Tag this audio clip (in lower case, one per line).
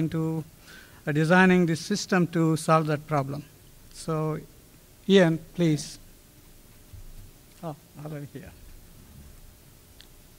speech